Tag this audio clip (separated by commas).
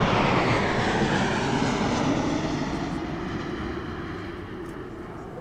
Vehicle, Aircraft, airplane